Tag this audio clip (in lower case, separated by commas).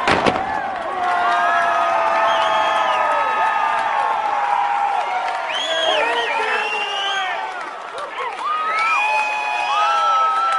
explosion, speech